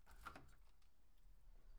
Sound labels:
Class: window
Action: opening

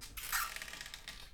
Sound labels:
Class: cupboard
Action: opening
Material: wooden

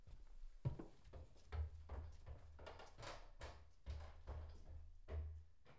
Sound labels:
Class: footsteps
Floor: wooden floor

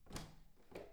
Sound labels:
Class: door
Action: opening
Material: wooden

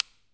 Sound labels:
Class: switch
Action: being turned on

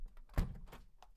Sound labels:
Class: window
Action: closing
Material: wooden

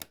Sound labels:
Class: switch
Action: being turned on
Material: plastic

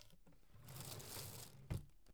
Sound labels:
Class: drawer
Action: opening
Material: wooden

